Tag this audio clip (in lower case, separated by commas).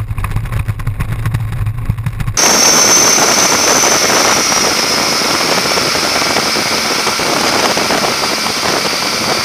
vehicle, outside, rural or natural, boat, motorboat